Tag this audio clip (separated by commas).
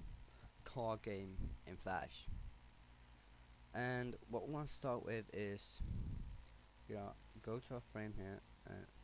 Speech